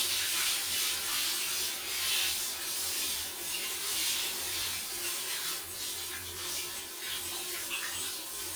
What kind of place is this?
restroom